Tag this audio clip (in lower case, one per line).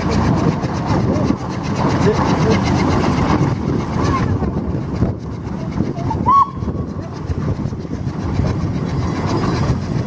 speech
engine
vehicle